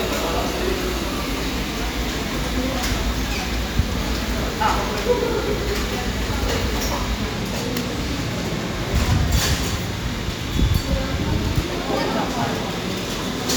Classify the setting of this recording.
cafe